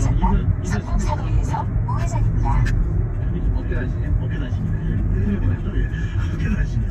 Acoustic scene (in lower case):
car